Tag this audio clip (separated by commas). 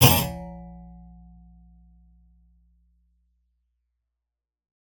Thump